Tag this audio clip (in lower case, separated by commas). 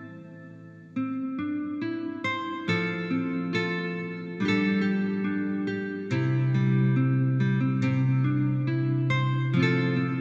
music, musical instrument, plucked string instrument, guitar